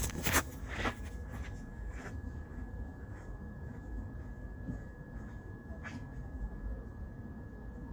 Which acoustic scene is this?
park